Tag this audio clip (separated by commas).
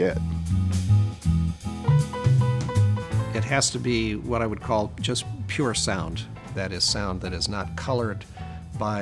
Music, Speech